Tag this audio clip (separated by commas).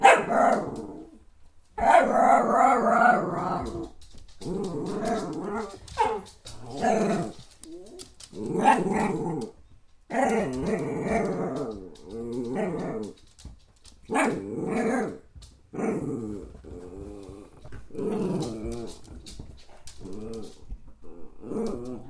Growling, Animal, pets, Dog